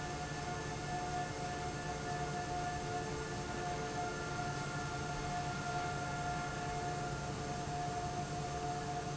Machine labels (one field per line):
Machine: fan